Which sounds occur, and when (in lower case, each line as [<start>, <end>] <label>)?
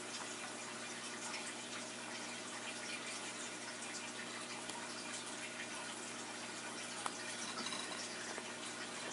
[0.00, 9.12] mechanisms
[0.00, 9.12] dribble
[4.62, 4.72] generic impact sounds
[6.99, 7.09] generic impact sounds